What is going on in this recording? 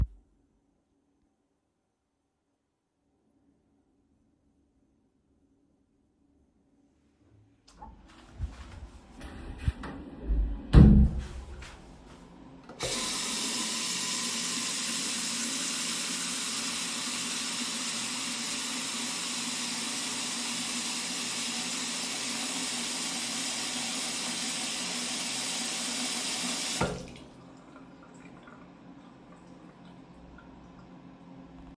I walked into the bathroom and closed the door. I turned the water on, then turned it off and left.